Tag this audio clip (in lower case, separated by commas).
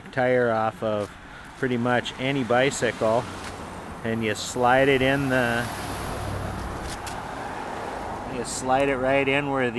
vehicle, speech